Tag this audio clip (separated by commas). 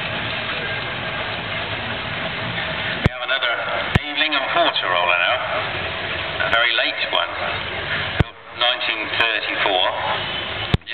Speech, Vehicle, Medium engine (mid frequency), Engine